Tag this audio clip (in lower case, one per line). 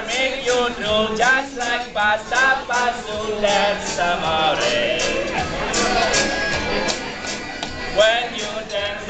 male singing
music